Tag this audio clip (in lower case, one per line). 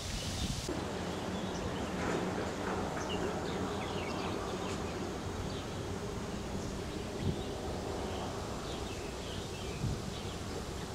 bird